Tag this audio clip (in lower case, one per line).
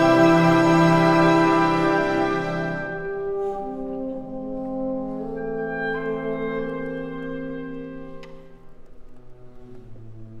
violin
bowed string instrument
music
musical instrument
classical music